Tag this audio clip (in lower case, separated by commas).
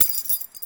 keys jangling, domestic sounds